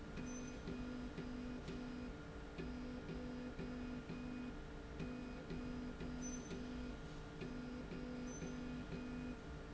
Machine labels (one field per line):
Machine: slide rail